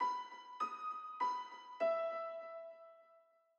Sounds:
Musical instrument, Music, Piano, Keyboard (musical)

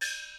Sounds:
Gong, Music, Musical instrument, Percussion

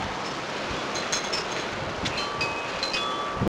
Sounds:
Wind, Wind chime, Chime, Bell

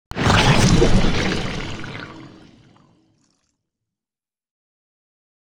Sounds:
Gurgling, Water

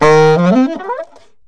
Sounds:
Wind instrument, Music, Musical instrument

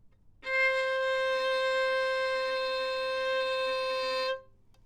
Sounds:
Bowed string instrument, Music, Musical instrument

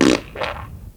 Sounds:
Fart

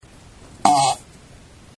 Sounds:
Fart

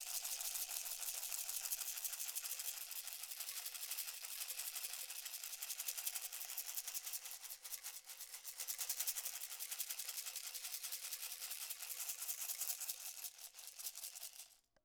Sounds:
Music, Musical instrument, Rattle (instrument), Percussion

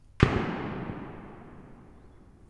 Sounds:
Gunshot, Explosion

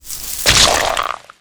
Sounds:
Splash, Liquid

